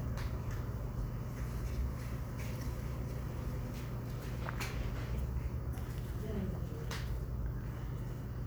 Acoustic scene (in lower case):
crowded indoor space